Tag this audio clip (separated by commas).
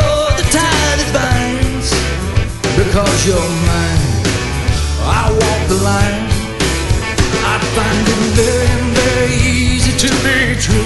Music